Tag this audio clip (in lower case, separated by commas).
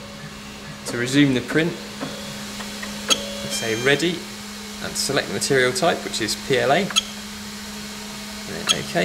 speech